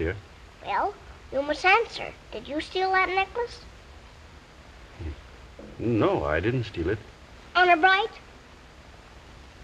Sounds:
speech, whimper

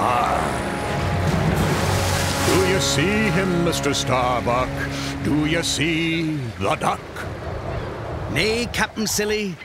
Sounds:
music, speech, quack, animal

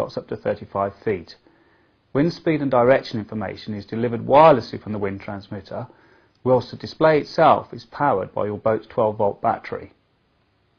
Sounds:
speech

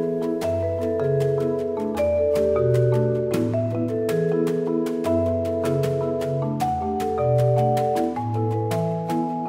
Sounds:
vibraphone

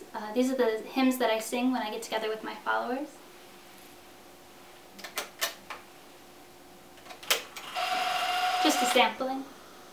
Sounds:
speech, inside a small room

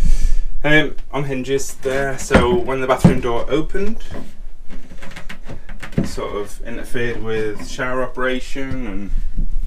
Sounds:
sliding door

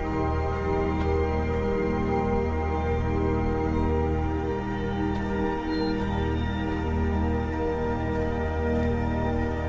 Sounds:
music

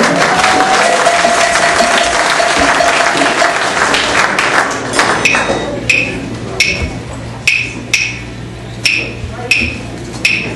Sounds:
music, percussion

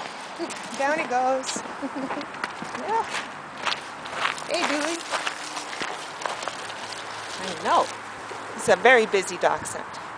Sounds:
speech

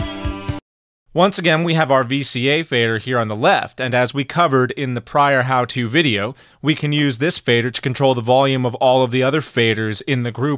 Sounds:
music, speech

